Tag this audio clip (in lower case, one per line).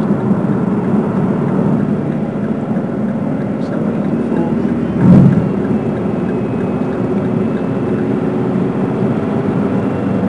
car
vehicle